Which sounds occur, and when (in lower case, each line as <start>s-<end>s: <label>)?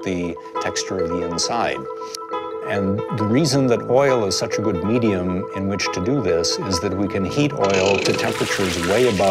0.0s-0.3s: man speaking
0.0s-9.3s: music
0.3s-0.5s: breathing
0.5s-1.9s: man speaking
0.6s-0.6s: tick
0.9s-1.0s: tick
1.9s-2.1s: sound effect
2.1s-2.2s: tick
2.6s-2.9s: man speaking
3.1s-5.4s: man speaking
5.5s-9.3s: man speaking
7.6s-8.2s: generic impact sounds
8.2s-9.3s: frying (food)